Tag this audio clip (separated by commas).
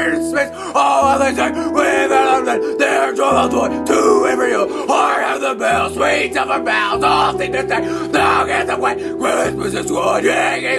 Music, Speech